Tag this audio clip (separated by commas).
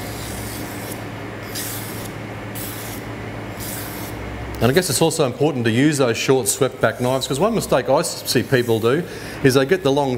sharpen knife